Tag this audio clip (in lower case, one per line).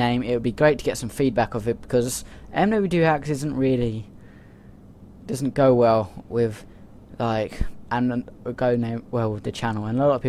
vehicle
speech